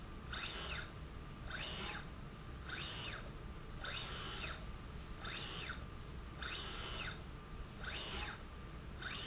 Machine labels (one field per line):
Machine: slide rail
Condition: normal